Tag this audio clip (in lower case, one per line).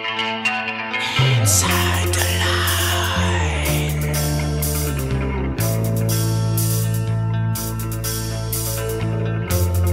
music